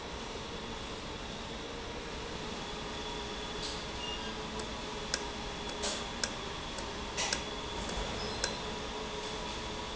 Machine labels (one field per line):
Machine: valve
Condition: normal